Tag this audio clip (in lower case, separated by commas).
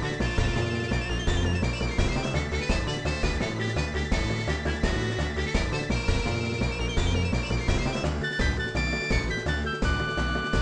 video game music, music